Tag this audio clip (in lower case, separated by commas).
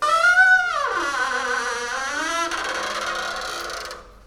squeak